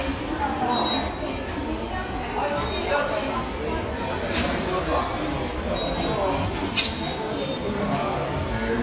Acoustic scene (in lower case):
subway station